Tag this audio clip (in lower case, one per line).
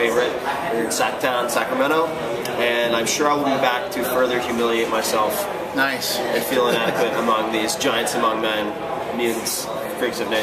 speech